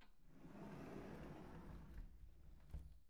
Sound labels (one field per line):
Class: door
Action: closing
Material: wooden